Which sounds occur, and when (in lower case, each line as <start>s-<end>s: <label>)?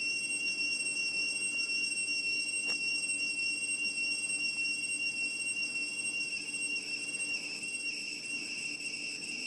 0.0s-9.4s: alarm
0.0s-9.4s: background noise
2.6s-2.7s: tick